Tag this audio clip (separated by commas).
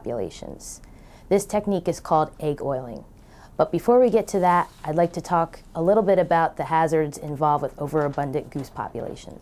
Speech